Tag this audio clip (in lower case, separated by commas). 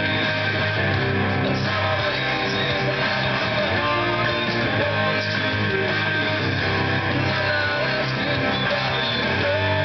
guitar, strum, music, plucked string instrument, electric guitar, musical instrument